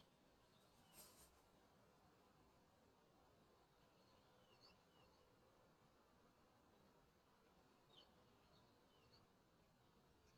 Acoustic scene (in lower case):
park